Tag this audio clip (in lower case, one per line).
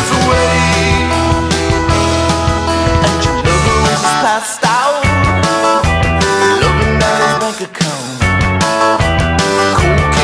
male singing
music